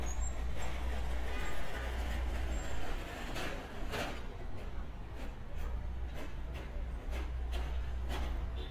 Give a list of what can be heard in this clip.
non-machinery impact, car horn